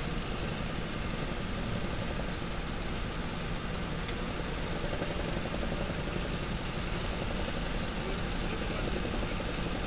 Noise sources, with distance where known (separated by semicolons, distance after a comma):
unidentified impact machinery, near